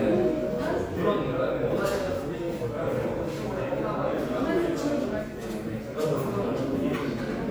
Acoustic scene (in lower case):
crowded indoor space